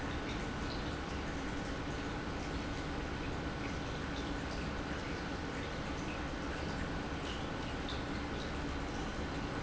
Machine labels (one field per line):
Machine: pump